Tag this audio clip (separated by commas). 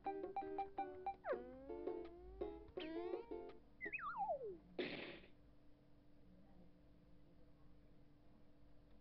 Music